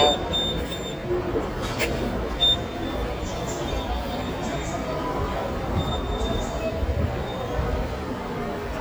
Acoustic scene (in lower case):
subway station